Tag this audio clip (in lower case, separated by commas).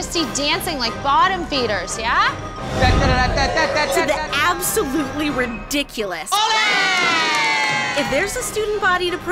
music, speech